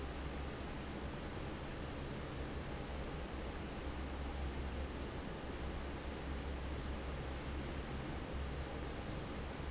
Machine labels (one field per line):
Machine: fan